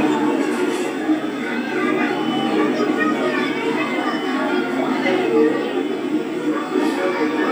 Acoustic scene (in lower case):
park